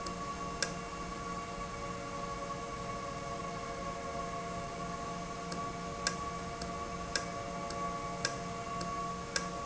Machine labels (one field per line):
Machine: valve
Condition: normal